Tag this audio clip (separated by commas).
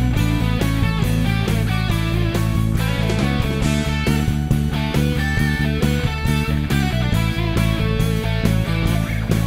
playing bass guitar